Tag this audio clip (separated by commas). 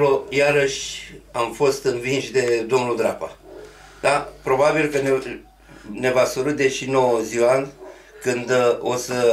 inside a small room, Speech